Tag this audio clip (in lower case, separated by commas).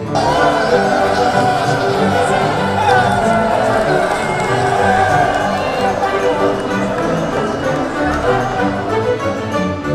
run, music